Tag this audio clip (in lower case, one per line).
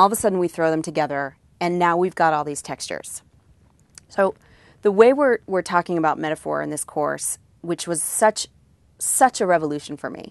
speech
woman speaking